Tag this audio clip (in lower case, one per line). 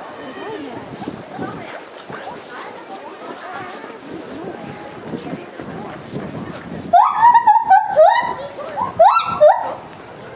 gibbon howling